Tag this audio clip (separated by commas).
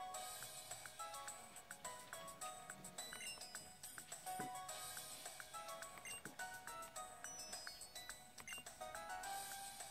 Music